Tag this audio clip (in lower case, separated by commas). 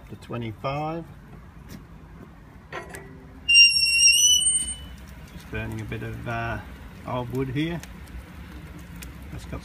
speech